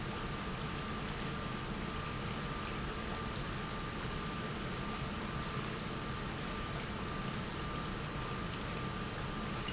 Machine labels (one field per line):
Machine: pump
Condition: normal